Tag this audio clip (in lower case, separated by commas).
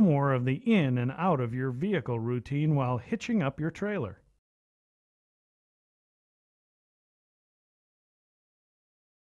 speech